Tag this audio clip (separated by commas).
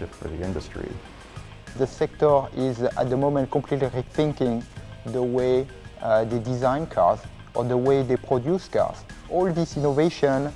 Speech, Music